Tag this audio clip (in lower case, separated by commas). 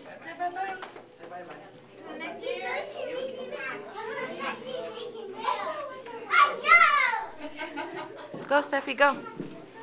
speech